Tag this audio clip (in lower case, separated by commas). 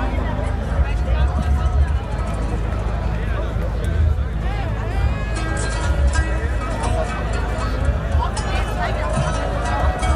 music, speech